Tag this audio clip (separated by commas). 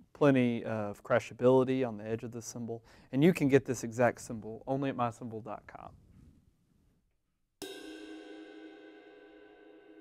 Musical instrument, Speech, Music, Hi-hat